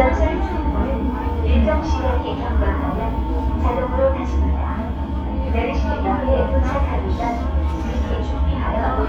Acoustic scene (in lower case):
subway train